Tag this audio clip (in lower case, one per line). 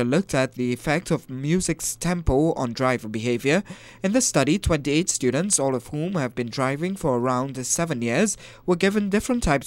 speech